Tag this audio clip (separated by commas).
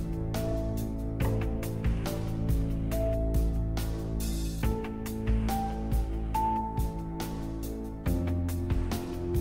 Music